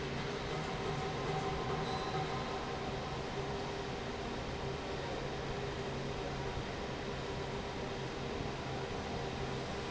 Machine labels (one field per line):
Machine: fan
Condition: normal